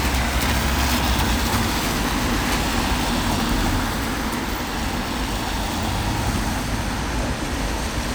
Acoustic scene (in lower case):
street